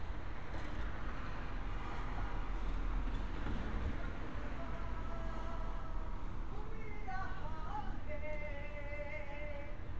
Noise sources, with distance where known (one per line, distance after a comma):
car horn, far